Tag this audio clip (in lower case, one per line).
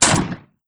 explosion
gunshot